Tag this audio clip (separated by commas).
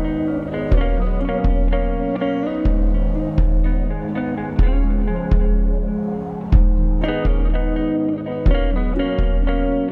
Steel guitar, Music